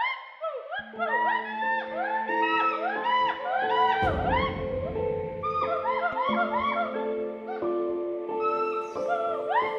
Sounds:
gibbon howling

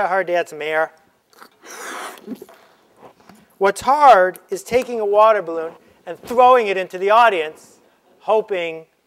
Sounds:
inside a large room or hall, Speech

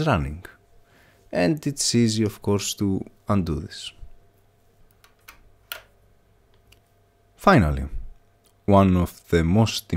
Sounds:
Speech

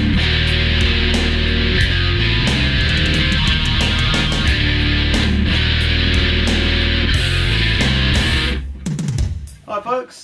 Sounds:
Music, Speech

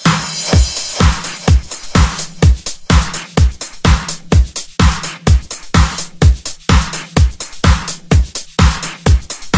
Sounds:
Music

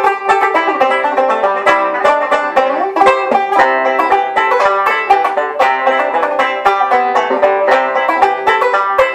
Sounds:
Banjo, Music

